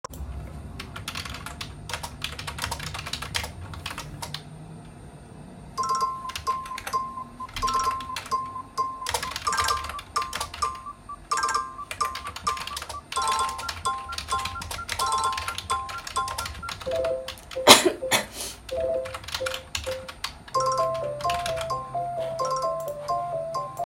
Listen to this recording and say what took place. I was typing on the keyboard while my phone was ringing. Then I coughed once.